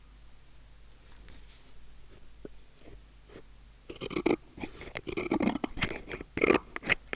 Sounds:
tools

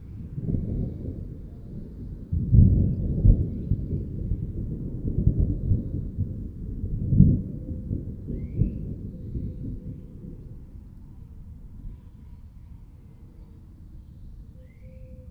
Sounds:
thunder, thunderstorm

